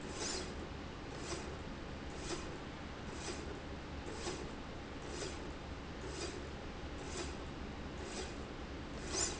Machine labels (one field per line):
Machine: slide rail